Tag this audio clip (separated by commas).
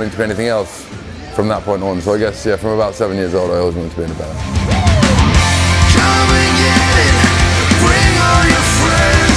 Speech, Music